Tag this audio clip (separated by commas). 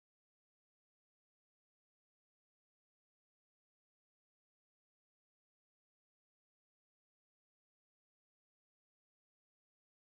Music